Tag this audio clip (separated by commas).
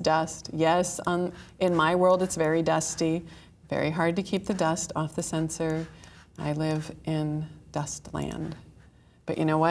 Speech